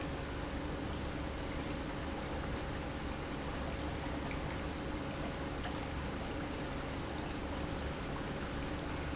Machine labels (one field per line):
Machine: pump